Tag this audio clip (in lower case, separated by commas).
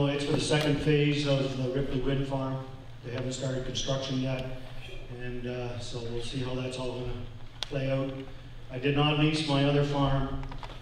speech